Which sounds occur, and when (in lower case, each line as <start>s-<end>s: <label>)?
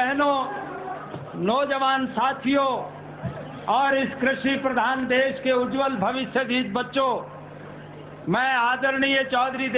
0.0s-0.8s: man speaking
0.5s-1.5s: crowd
1.3s-2.9s: man speaking
3.5s-7.2s: man speaking
8.3s-9.7s: man speaking